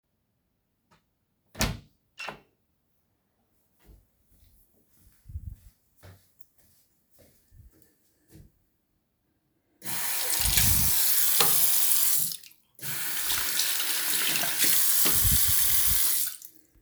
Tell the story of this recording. After my lunch I went to the bathroom. I came in, turned on the water and during that I switched on the light. Once I finished the washing, I turned off the light while the water was still running.